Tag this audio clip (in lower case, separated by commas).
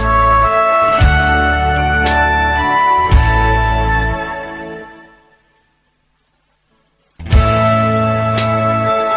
soul music, music